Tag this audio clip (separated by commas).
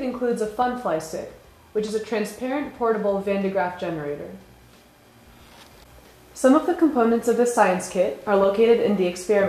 Speech